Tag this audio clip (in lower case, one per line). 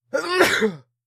sneeze
respiratory sounds